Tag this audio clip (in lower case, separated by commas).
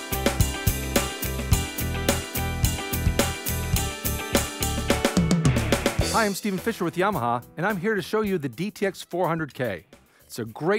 speech, music